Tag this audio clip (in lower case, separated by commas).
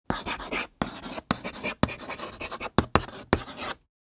domestic sounds, writing